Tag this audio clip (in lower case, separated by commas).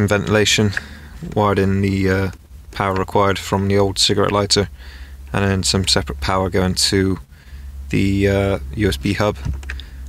speech